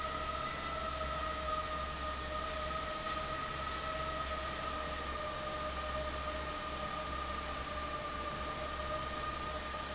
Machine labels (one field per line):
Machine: fan